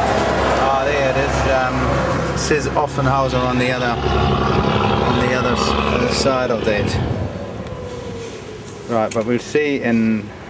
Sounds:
Speech, outside, rural or natural, Vehicle

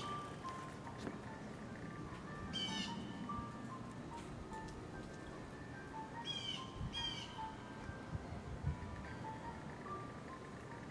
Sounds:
Music, Vehicle, Boat, Motorboat

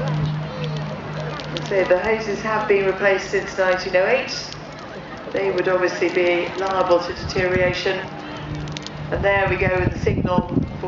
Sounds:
Speech

